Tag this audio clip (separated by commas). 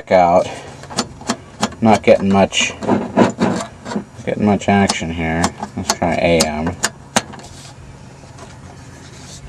Speech